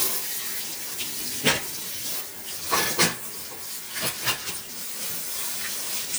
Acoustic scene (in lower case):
kitchen